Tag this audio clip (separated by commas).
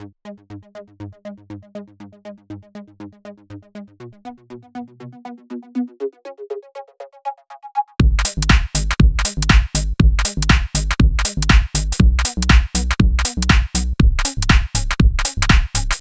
Drum, Music, Percussion, Musical instrument, Bass drum